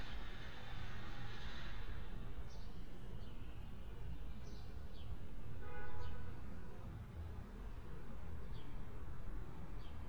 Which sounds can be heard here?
car horn